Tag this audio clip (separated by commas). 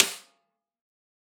Snare drum, Drum, Percussion, Music, Musical instrument